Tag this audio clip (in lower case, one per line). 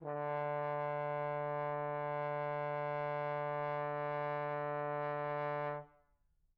musical instrument
brass instrument
music